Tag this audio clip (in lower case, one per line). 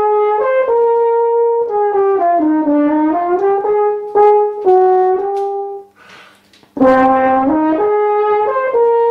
playing french horn